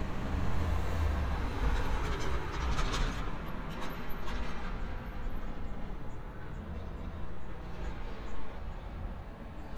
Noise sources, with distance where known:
large-sounding engine

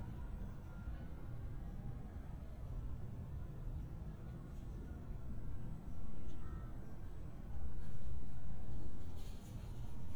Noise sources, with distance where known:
background noise

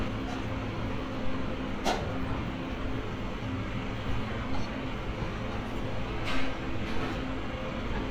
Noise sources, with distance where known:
large-sounding engine, near
non-machinery impact

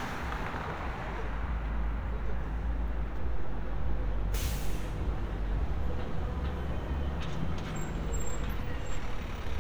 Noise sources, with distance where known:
large-sounding engine, near

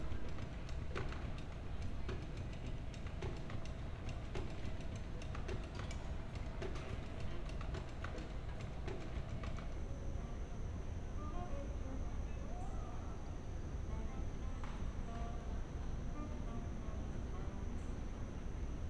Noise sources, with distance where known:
music from a fixed source

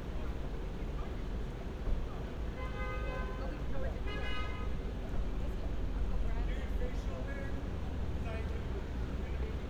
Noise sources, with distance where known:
engine of unclear size
car horn, near
person or small group talking, near

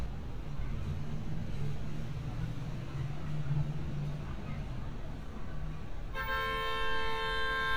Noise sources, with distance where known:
medium-sounding engine, far
car horn, near

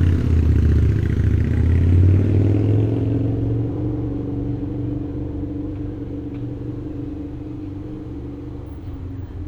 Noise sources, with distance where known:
medium-sounding engine, near

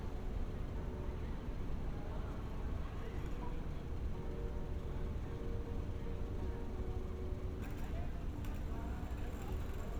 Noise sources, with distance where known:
background noise

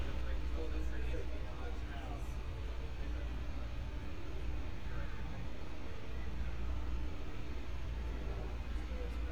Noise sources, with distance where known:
unidentified human voice, far

